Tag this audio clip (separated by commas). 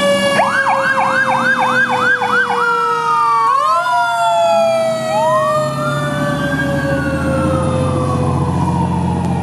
fire truck siren